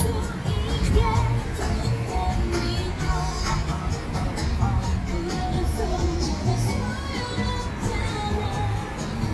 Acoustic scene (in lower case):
street